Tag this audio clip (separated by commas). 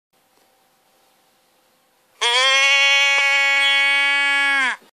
Sheep, Bleat